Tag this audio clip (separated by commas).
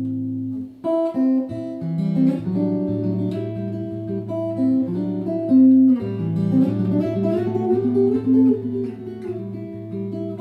Music, Musical instrument, Guitar